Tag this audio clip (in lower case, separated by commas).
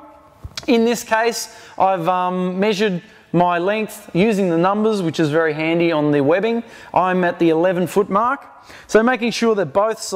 speech